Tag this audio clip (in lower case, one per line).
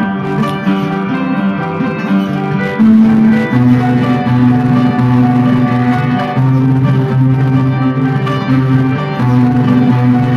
acoustic guitar
music
guitar
strum
plucked string instrument
musical instrument